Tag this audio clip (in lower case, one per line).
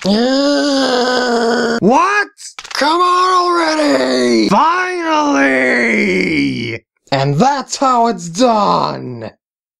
speech
groan